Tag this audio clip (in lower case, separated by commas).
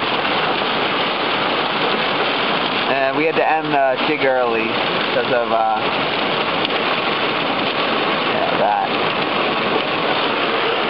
speech